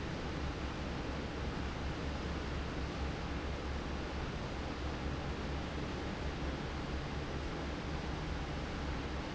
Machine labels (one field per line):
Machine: fan